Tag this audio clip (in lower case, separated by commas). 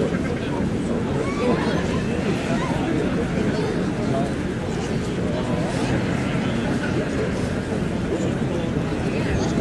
speech